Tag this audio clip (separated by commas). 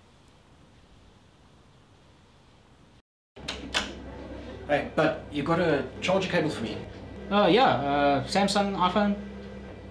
Speech